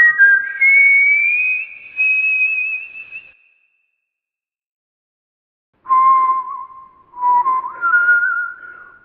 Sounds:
people whistling, whistling

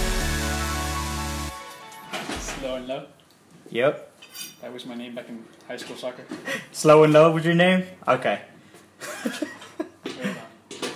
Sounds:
music, inside a small room, speech

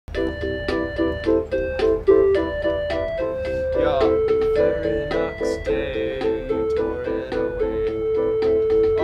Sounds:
inside a small room, music

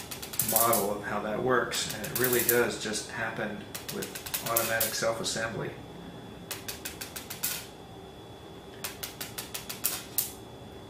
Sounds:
speech

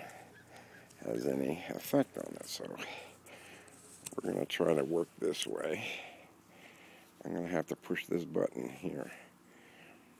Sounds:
speech

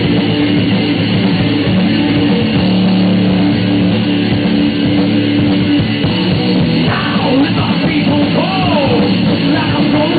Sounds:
music, heavy metal, drum kit, cymbal, bass drum, percussion, drum, hi-hat, rock music, guitar, musical instrument

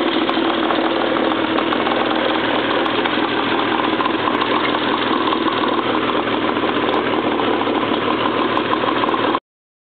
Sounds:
speedboat, vehicle

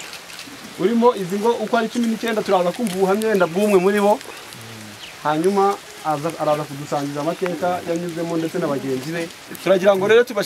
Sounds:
speech

